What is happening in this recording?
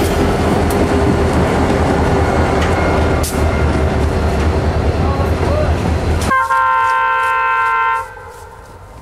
A train is passing by slowly and the train blows its horn